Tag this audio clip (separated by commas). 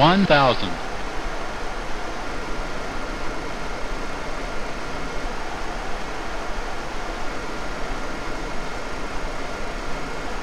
Speech